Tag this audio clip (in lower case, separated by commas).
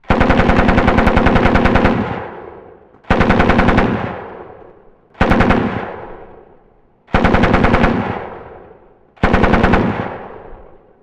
explosion, gunfire